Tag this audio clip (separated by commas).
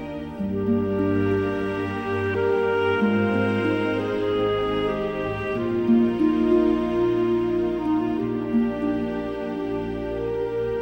Music